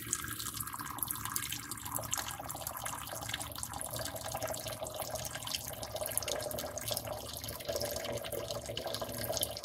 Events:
[0.00, 9.64] trickle

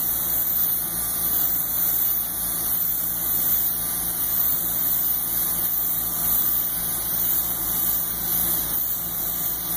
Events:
[0.00, 9.75] spray

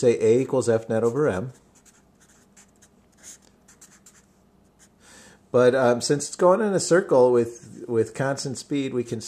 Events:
[0.00, 9.25] mechanisms
[4.97, 5.40] breathing
[7.41, 7.88] writing
[7.69, 9.25] man speaking

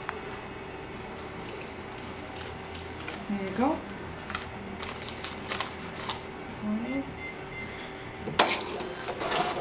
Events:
[0.00, 9.60] mechanisms
[0.02, 0.10] generic impact sounds
[0.23, 0.40] generic impact sounds
[1.11, 1.65] generic impact sounds
[1.91, 2.48] paper rustling
[2.69, 3.18] paper rustling
[3.25, 3.79] woman speaking
[4.29, 4.46] generic impact sounds
[4.77, 6.13] paper rustling
[4.80, 5.68] generic impact sounds
[5.94, 6.13] generic impact sounds
[6.59, 7.02] woman speaking
[6.83, 7.02] bleep
[7.15, 7.34] bleep
[7.47, 7.67] bleep
[7.67, 8.35] human voice
[8.19, 8.39] generic impact sounds
[8.35, 9.60] cash register

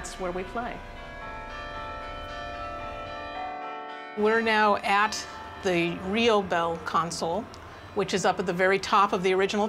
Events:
[0.00, 0.80] female speech
[0.00, 9.65] bell
[0.00, 9.65] mechanisms
[4.14, 5.24] female speech
[5.61, 7.42] female speech
[6.71, 6.78] tick
[7.50, 7.59] tick
[7.94, 9.65] female speech

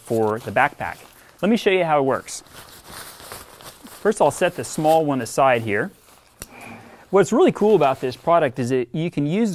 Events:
[0.00, 0.25] surface contact
[0.00, 9.54] background noise
[0.09, 0.92] man speaking
[0.34, 1.28] surface contact
[1.41, 2.40] man speaking
[2.06, 4.24] surface contact
[4.03, 5.88] man speaking
[4.49, 5.02] surface contact
[5.47, 6.15] surface contact
[6.35, 6.42] tick
[6.42, 7.00] scrape
[7.10, 8.82] man speaking
[7.54, 8.33] surface contact
[8.93, 9.54] man speaking

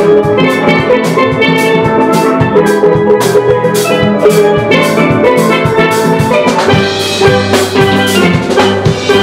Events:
[0.00, 9.22] music

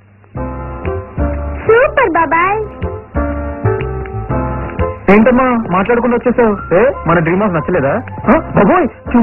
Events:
[0.00, 9.22] music
[1.64, 2.67] male speech
[5.04, 7.97] male speech
[8.26, 8.88] male speech
[9.08, 9.22] male speech

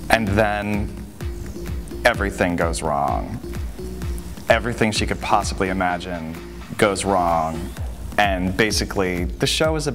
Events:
[0.00, 9.94] music
[0.09, 0.82] male speech
[2.00, 3.27] male speech
[4.48, 6.36] male speech
[6.75, 7.61] male speech
[8.13, 9.94] male speech

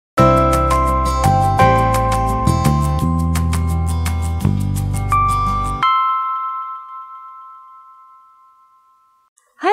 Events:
[0.14, 9.27] music
[9.35, 9.72] music

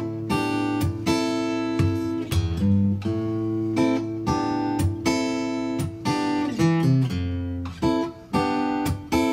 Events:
[0.00, 9.32] music

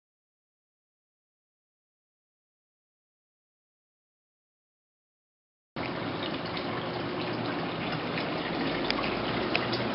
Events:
[5.70, 9.94] mechanisms
[5.70, 9.94] water
[8.81, 8.89] tick
[9.48, 9.76] generic impact sounds

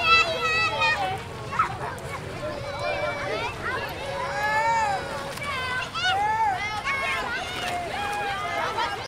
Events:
[0.00, 9.05] children playing
[0.00, 9.05] water
[5.35, 6.45] child speech
[8.70, 9.05] child speech

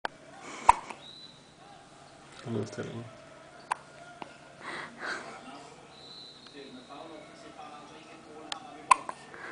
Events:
[0.00, 9.51] background noise
[0.29, 0.68] scrape
[0.61, 0.88] burst
[0.87, 1.00] generic impact sounds
[0.87, 1.36] whistle
[1.98, 2.26] squeal
[2.37, 4.62] man speaking
[3.59, 3.78] squeal
[3.65, 3.80] generic impact sounds
[4.14, 4.33] generic impact sounds
[4.62, 5.92] breathing
[5.37, 5.78] squeal
[5.81, 6.51] whistle
[6.40, 6.59] generic impact sounds
[6.46, 9.51] man speaking
[7.45, 8.07] squeal
[8.49, 8.65] generic impact sounds
[8.85, 9.17] burst
[9.04, 9.23] generic impact sounds

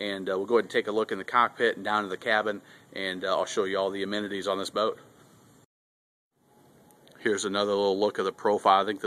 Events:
[0.00, 1.49] male speech
[0.00, 5.62] mechanisms
[1.58, 2.59] male speech
[2.60, 2.82] breathing
[2.92, 4.94] male speech
[6.30, 9.05] mechanisms
[6.84, 7.11] clicking
[7.15, 8.26] male speech
[8.39, 9.05] male speech

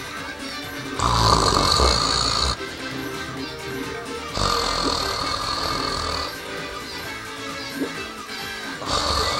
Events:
[0.00, 9.35] music
[0.00, 9.35] video game sound
[0.92, 2.54] snoring
[4.34, 6.35] snoring
[8.83, 9.35] snoring

